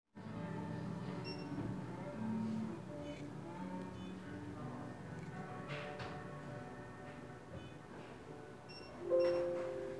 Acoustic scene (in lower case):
cafe